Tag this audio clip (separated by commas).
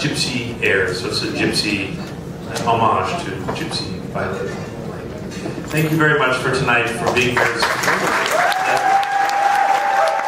Speech